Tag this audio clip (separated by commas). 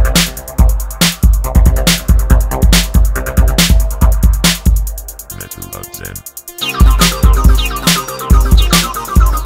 Techno, Electronic music, Music